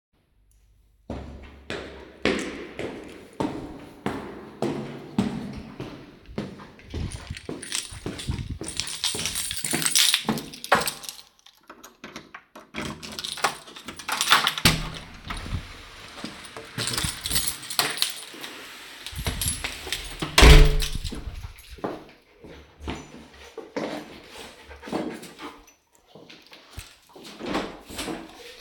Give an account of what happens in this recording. I am walking up the hallway to my front door, I take out my keys, I open the door, walk in and close the door behind me my dog comes up to me to greet me and makes the breathing sounds. I walk down the hallway, through the kitchen and open the balcony door